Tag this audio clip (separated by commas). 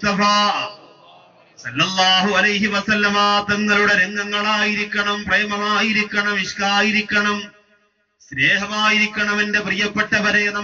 Male speech, Speech